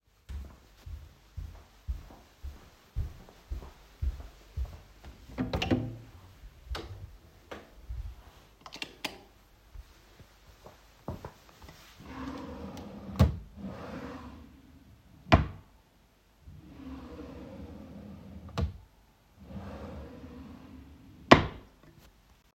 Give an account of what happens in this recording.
I am going into the bedroom; therefore opening the door; then turn on the light and start searching my wardrobe drawers for underwear.